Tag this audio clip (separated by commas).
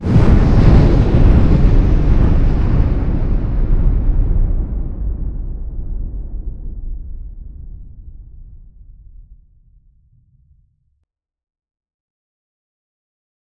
Explosion, Thunderstorm, Thunder